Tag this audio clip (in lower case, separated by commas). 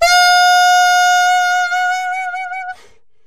musical instrument, music, wind instrument